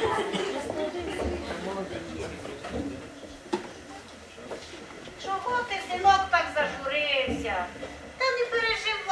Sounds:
speech

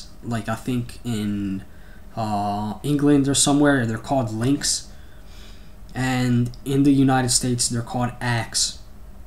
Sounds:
speech

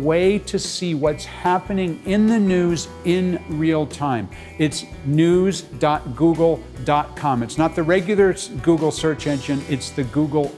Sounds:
music, speech

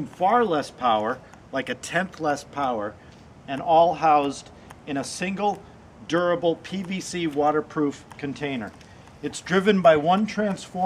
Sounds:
speech

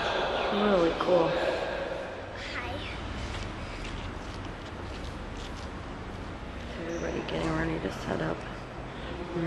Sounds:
speech

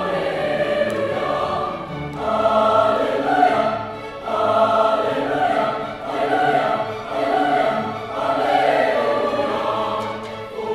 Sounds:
singing choir, choir, music

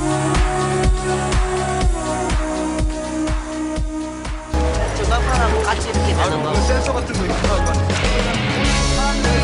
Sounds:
speech, music

